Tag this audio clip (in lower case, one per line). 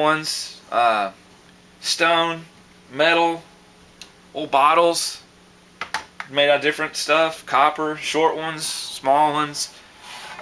speech